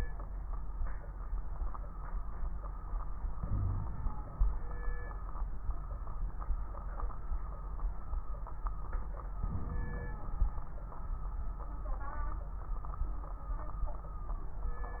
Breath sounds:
Inhalation: 3.35-4.45 s, 9.42-10.45 s
Wheeze: 3.44-3.87 s
Crackles: 9.42-10.45 s

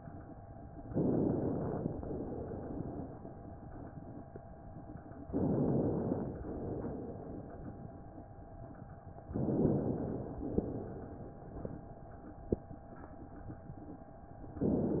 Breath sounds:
Inhalation: 0.85-1.92 s, 5.28-6.34 s, 9.32-10.36 s
Exhalation: 1.97-3.47 s, 6.41-7.91 s, 10.44-11.94 s

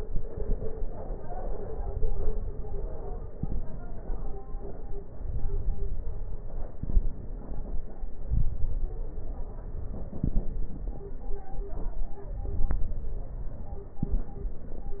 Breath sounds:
Inhalation: 1.43-3.19 s, 5.11-6.68 s, 8.18-10.09 s, 12.26-13.91 s
Exhalation: 3.21-5.10 s, 6.68-8.20 s, 10.08-12.23 s, 13.93-15.00 s
Crackles: 1.43-3.19 s, 3.21-5.10 s, 5.11-6.67 s, 6.68-8.20 s, 8.22-10.04 s, 10.08-12.23 s, 13.93-15.00 s

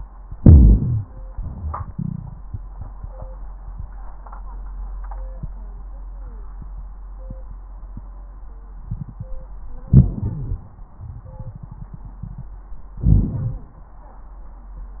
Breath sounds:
Inhalation: 0.32-1.02 s, 9.91-10.64 s, 13.03-13.76 s
Exhalation: 1.29-1.89 s
Crackles: 0.32-1.02 s, 13.03-13.76 s

